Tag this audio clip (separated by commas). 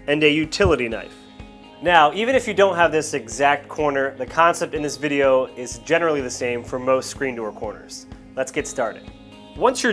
Speech, Music